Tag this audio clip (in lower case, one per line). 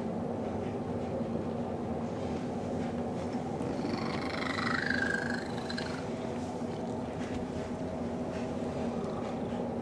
purr
cat
pets
animal